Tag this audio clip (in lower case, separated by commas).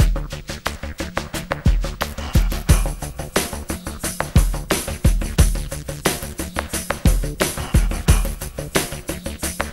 electronica, music